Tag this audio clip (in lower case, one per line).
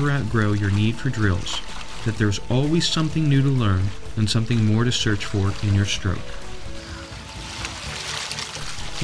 speech
water
music